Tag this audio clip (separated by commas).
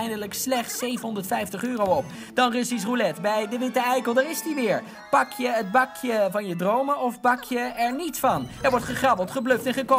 Music, Speech